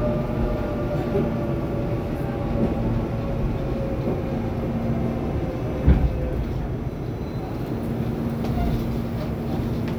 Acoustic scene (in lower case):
subway train